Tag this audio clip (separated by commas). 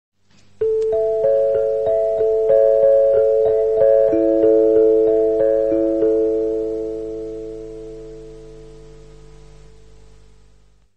Music